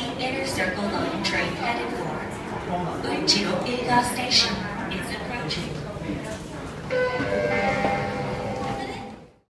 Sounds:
speech, music, underground

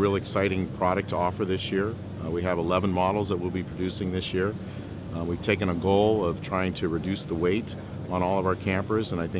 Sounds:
speech

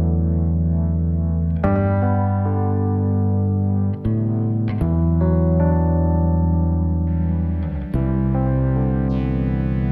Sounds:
ambient music, music, synthesizer

